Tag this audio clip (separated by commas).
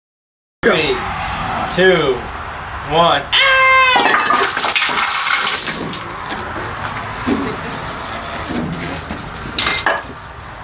Speech